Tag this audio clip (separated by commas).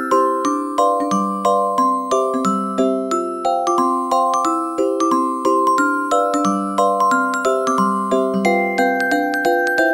Music